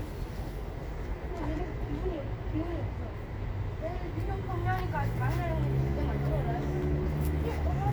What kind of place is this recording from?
residential area